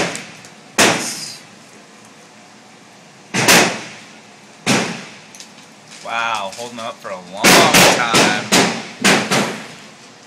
A gun is firing and an adult male speaks